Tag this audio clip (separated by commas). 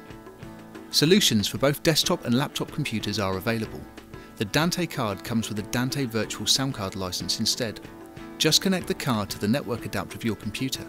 Music, Speech